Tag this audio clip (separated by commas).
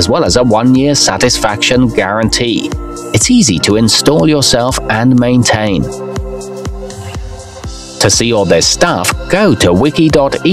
Speech synthesizer